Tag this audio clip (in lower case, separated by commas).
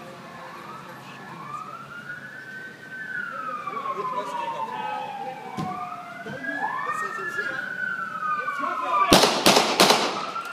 police car (siren), siren, emergency vehicle